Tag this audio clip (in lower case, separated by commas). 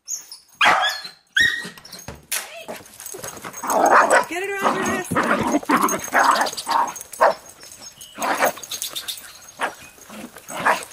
outside, rural or natural, canids, animal, speech, dog, pets